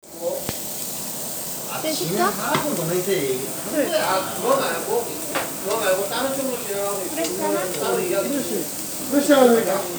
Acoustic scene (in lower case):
restaurant